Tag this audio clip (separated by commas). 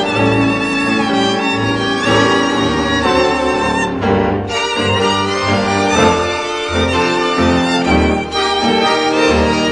Music